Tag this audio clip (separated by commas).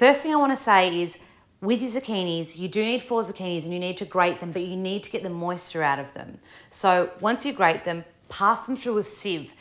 Speech